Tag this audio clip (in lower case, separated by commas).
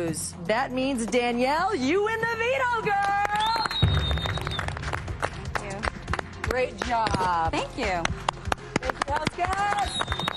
music, speech